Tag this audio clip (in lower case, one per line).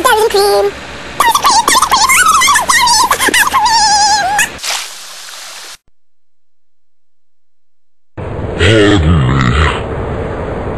inside a small room
speech